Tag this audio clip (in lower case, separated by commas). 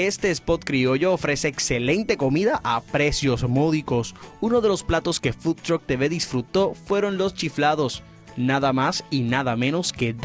speech, music